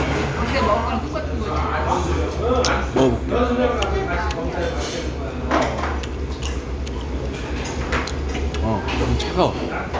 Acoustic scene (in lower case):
restaurant